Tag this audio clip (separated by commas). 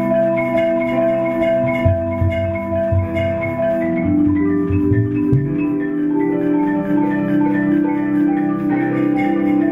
playing vibraphone